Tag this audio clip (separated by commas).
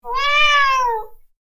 Cat, Meow, Animal, pets